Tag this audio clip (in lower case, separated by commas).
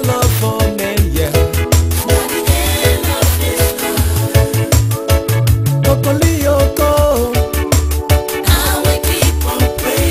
music